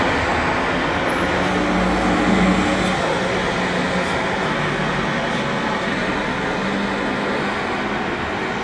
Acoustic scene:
street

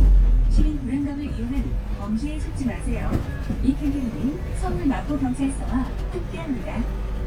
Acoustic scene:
bus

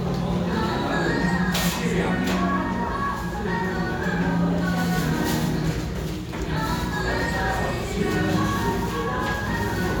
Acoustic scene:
restaurant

